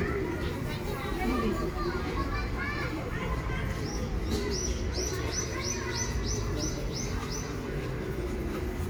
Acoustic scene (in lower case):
residential area